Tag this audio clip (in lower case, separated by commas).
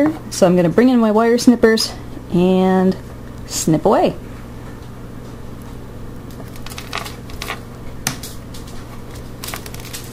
speech